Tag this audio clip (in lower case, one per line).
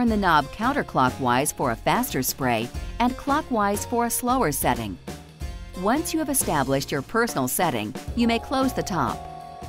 speech
music